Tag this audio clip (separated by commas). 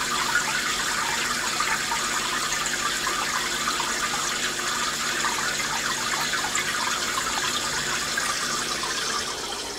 Fill (with liquid)